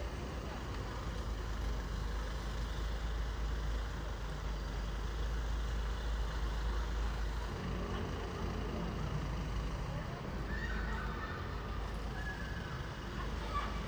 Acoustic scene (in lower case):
residential area